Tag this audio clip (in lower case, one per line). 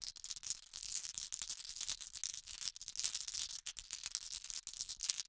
glass